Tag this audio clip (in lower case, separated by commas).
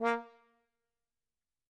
music, brass instrument, musical instrument